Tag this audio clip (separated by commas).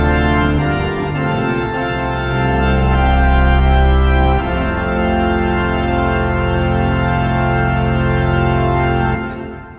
playing electronic organ